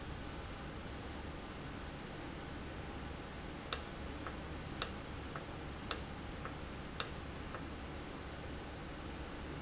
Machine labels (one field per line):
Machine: valve